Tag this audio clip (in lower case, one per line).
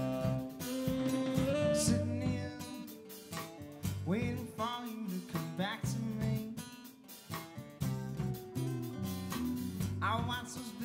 music